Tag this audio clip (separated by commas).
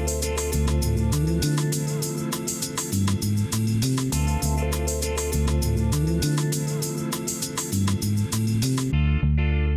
Music, inside a large room or hall